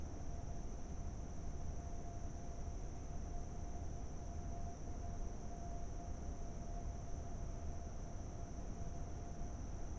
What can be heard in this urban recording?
background noise